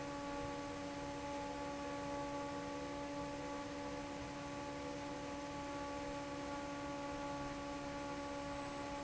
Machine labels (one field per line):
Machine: fan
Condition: normal